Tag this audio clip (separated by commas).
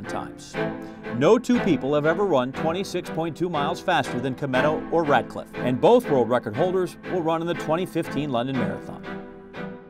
Speech, Music